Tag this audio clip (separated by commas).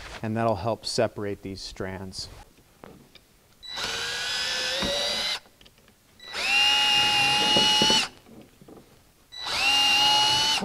Speech